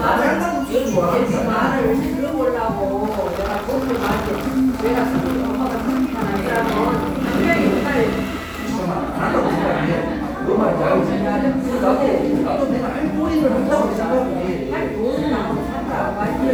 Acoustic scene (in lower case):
cafe